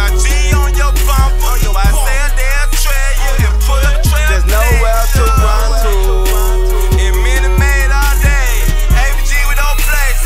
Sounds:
Music

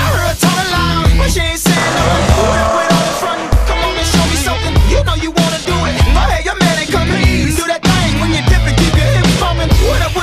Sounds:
Music

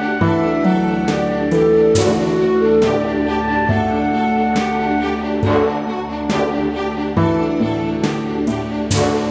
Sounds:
Music

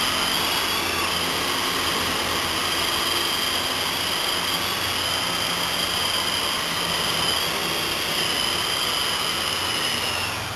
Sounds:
Helicopter

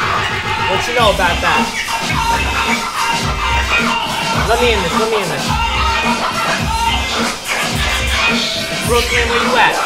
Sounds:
Scratching (performance technique), Speech, Music

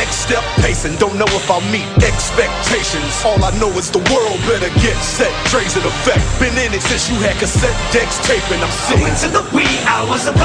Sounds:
Music, Tender music, Soundtrack music

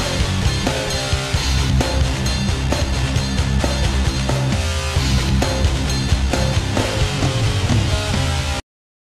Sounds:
Music

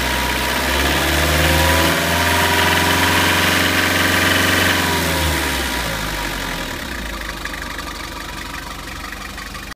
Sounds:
Vehicle

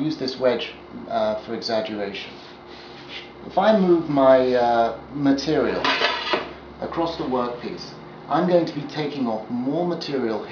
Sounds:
Speech

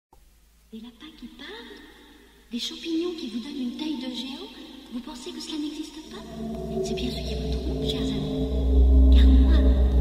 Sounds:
Music, Speech

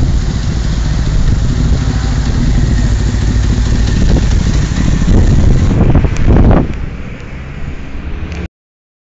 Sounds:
Vehicle, Car

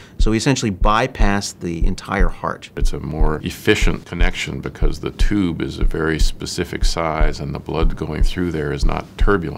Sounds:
Speech

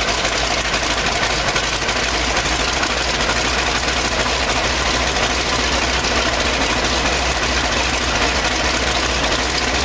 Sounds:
Engine, Vehicle, Jet engine

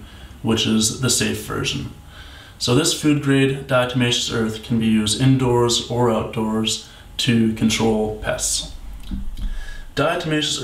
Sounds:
Speech

